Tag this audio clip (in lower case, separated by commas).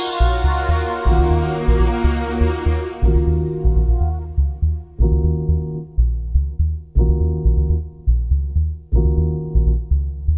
music, electronic music, electronic dance music